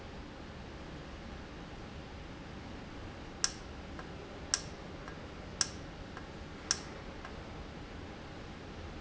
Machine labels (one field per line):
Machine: valve